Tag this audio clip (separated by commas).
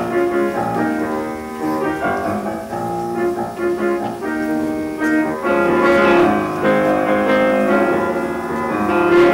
Music